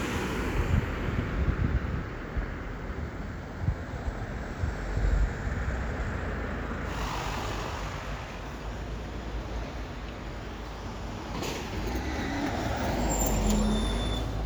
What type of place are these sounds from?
street